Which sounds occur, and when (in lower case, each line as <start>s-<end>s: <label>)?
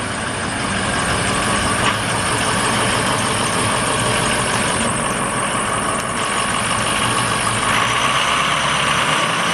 0.0s-9.5s: car
0.4s-4.8s: accelerating
1.8s-1.9s: tick
7.7s-9.5s: accelerating
7.7s-7.8s: tick